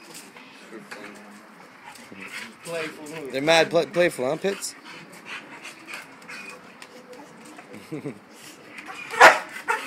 A dog pants and whimpers and a man speaks over it